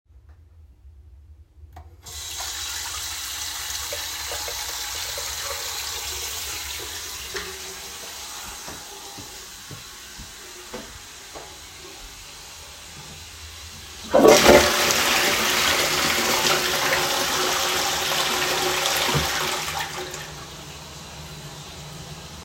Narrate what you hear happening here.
I turned on the running water, walked to the toilet and flushed it.